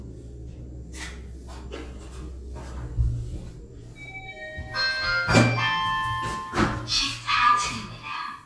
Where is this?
in an elevator